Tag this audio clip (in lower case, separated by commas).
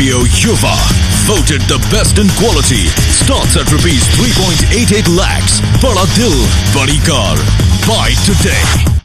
music, speech